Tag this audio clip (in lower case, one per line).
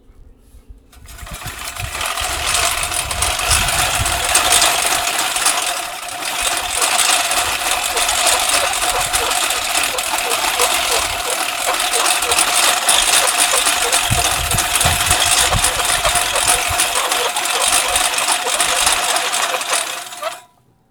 engine